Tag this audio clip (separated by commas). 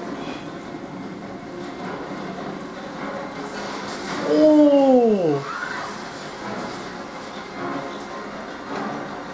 Music, Speech